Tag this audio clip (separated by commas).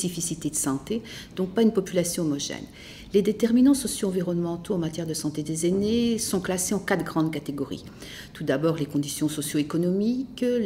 Speech